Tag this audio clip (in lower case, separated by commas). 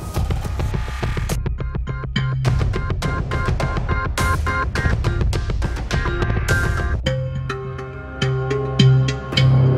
music